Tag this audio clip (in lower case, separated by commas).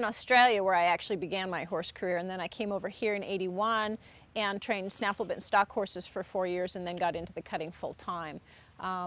speech